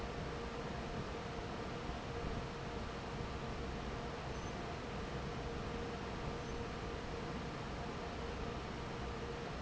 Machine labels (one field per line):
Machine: fan